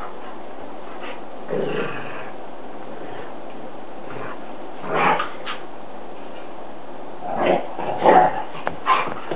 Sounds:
pets, dog, animal

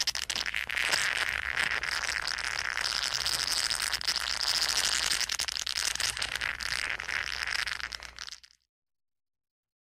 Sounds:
crackle

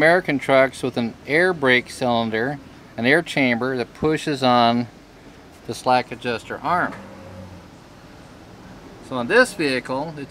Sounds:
speech

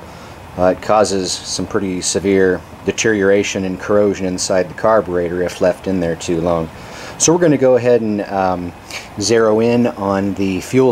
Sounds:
speech

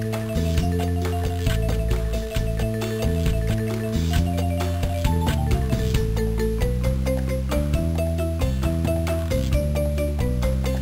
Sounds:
video game music, music

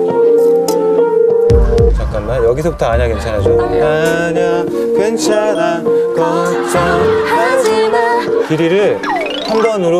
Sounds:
music, singing, speech

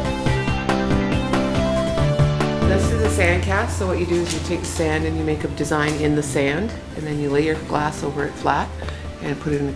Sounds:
speech, music

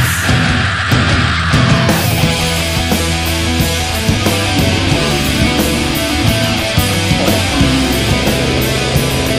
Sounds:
rock music, music, heavy metal

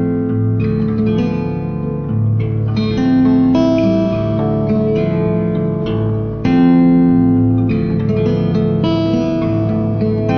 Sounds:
plucked string instrument, musical instrument, music, guitar, strum

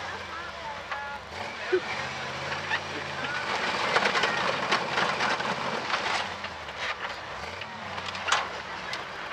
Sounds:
vehicle

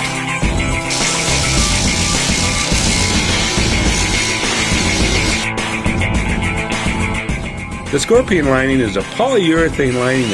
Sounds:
music, speech

